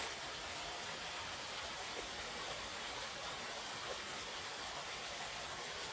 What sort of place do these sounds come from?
park